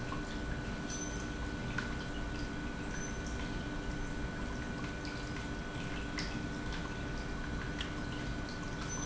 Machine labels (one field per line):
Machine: pump